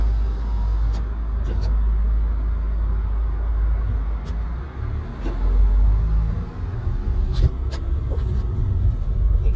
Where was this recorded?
in a car